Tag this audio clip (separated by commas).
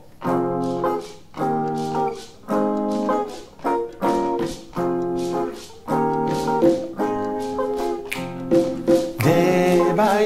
Music, Singing, Double bass, Musical instrument